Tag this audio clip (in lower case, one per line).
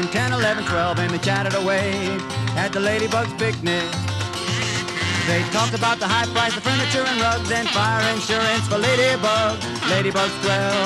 music